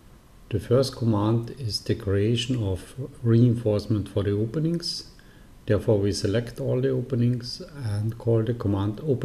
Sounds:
speech

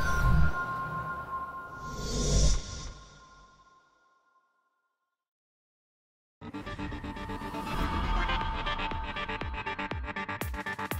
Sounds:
music

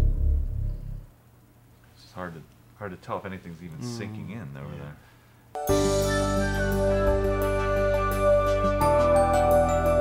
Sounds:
speech
music

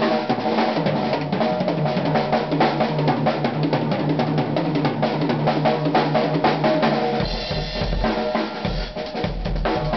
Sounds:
musical instrument
music

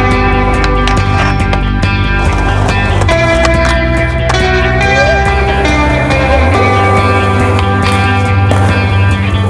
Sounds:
skateboard
music

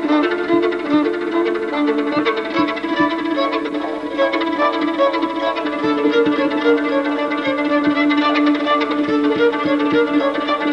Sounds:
violin
fiddle
musical instrument
music
bowed string instrument

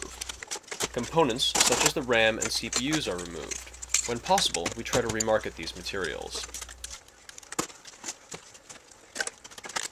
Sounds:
speech

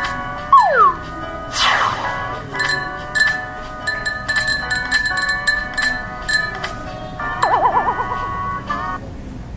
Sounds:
music

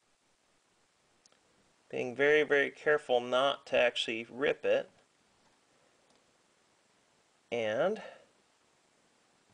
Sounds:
speech

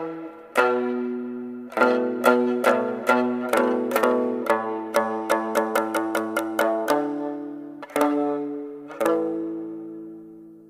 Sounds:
tender music
music

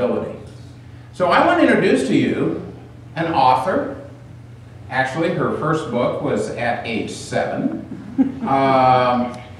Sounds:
man speaking
speech
narration

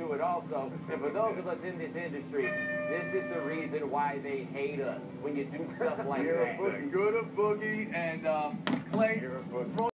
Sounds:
speech

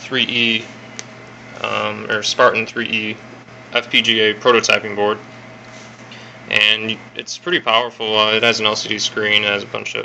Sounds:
speech

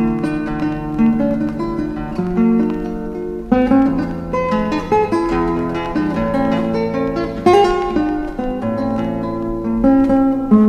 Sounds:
music

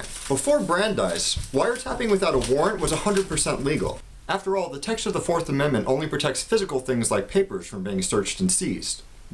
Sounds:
speech

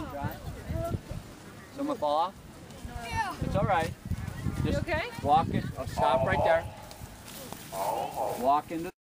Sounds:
animal
speech

